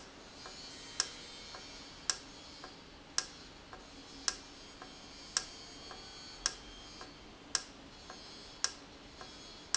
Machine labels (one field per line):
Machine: valve